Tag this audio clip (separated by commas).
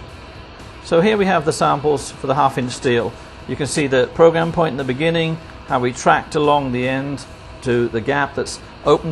arc welding